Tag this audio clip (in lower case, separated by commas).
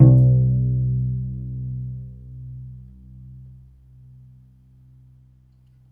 musical instrument, bowed string instrument, music